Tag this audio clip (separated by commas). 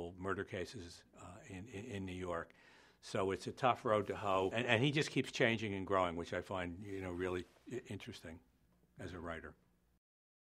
Speech